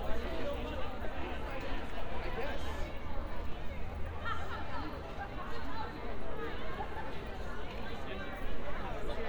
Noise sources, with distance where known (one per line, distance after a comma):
person or small group talking, near